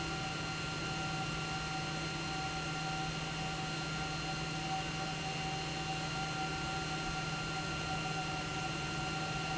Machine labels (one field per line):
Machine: pump